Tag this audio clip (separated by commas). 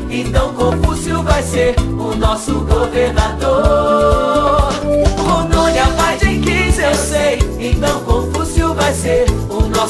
Jingle (music), Music